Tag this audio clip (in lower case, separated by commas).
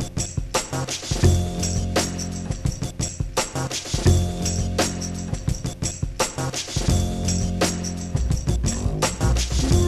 music